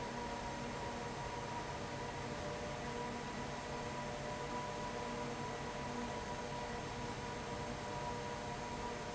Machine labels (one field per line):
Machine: fan